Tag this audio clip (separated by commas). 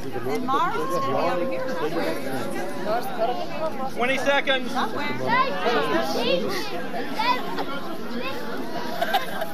Speech